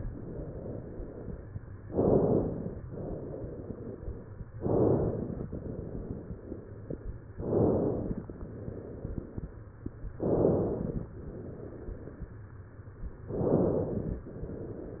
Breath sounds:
1.88-2.83 s: inhalation
2.83-4.50 s: exhalation
4.54-5.49 s: inhalation
5.52-7.19 s: exhalation
7.32-8.27 s: inhalation
8.27-9.94 s: exhalation
10.15-11.10 s: inhalation
11.16-12.83 s: exhalation
13.30-14.25 s: inhalation
14.27-15.00 s: exhalation

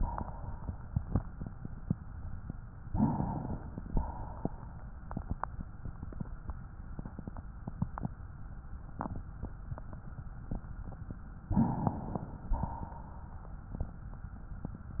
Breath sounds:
2.88-3.87 s: inhalation
3.88-5.03 s: exhalation
11.44-12.49 s: inhalation
12.48-13.72 s: exhalation

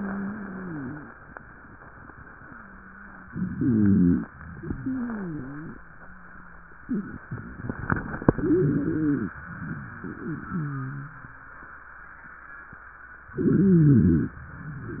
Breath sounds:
0.00-1.15 s: wheeze
3.29-4.22 s: inhalation
3.45-4.22 s: wheeze
4.60-5.74 s: exhalation
4.60-5.74 s: wheeze
6.83-7.11 s: wheeze
8.37-9.36 s: inhalation
8.37-9.36 s: wheeze
10.16-11.30 s: wheeze
13.33-14.47 s: inhalation
13.33-14.47 s: wheeze

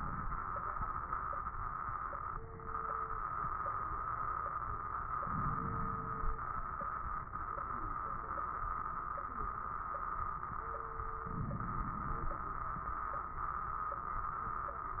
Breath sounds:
5.18-6.40 s: inhalation
5.18-6.40 s: crackles
11.25-12.47 s: inhalation
11.25-12.47 s: crackles

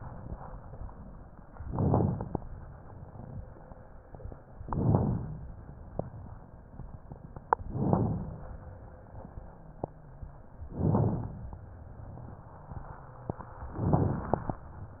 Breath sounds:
1.59-2.35 s: inhalation
1.59-2.35 s: crackles
4.61-5.37 s: inhalation
4.61-5.37 s: crackles
7.70-8.46 s: inhalation
7.70-8.46 s: crackles
10.72-11.48 s: inhalation
10.72-11.48 s: crackles
13.83-14.59 s: inhalation
13.83-14.59 s: crackles

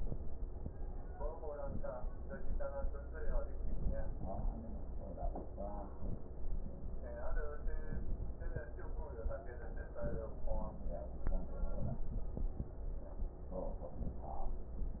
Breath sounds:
1.50-1.89 s: inhalation
9.94-10.33 s: inhalation
11.67-12.15 s: inhalation
11.67-12.15 s: crackles
13.89-14.37 s: inhalation

